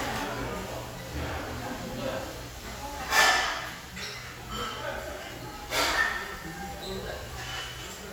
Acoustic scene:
restaurant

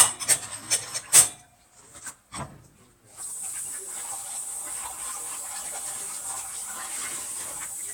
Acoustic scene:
kitchen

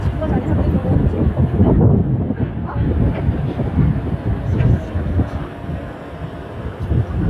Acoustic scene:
street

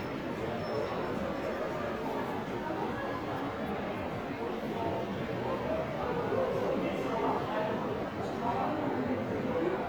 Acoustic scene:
crowded indoor space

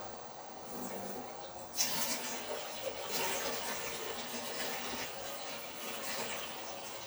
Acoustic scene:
kitchen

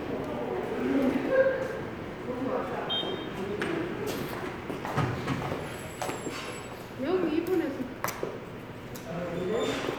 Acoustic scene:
subway station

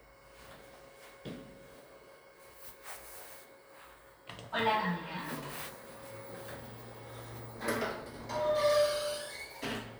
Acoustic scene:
elevator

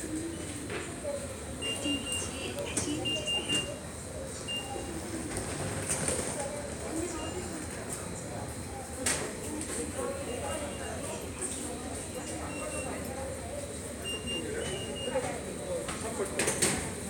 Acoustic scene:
subway station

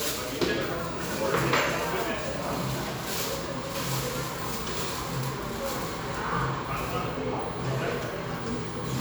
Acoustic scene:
cafe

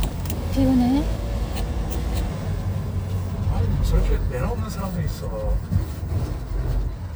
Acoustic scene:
car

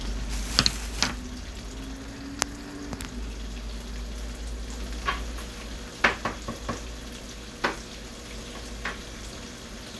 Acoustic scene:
kitchen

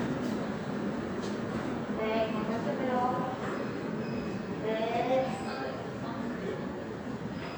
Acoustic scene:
subway station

